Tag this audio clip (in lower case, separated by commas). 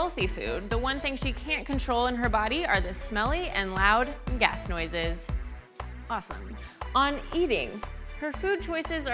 speech, music